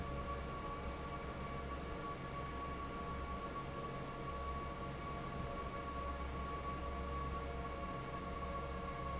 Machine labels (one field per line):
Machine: fan